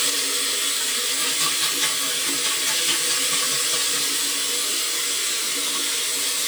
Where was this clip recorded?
in a restroom